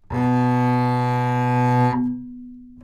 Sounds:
bowed string instrument
music
musical instrument

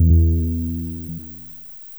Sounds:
keyboard (musical)
piano
music
musical instrument

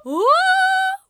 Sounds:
singing
human voice
female singing

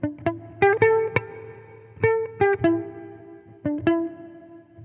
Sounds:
electric guitar
plucked string instrument
music
guitar
musical instrument

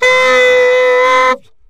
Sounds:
musical instrument
woodwind instrument
music

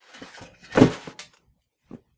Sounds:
thud

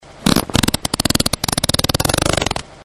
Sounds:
fart

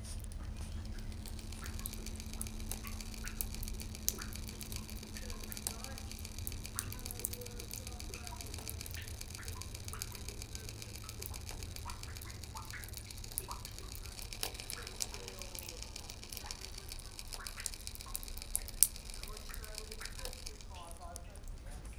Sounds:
drip
liquid

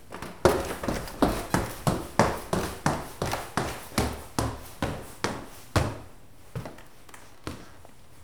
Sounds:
footsteps

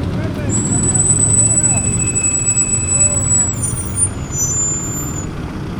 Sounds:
screech

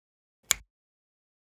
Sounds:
hands
finger snapping

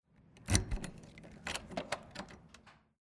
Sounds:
door
domestic sounds

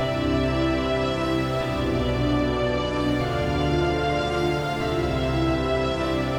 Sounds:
music
musical instrument

